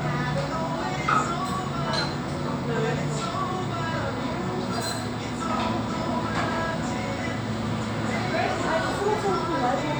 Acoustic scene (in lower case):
cafe